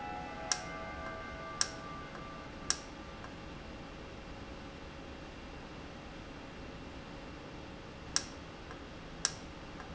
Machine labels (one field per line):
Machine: valve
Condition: normal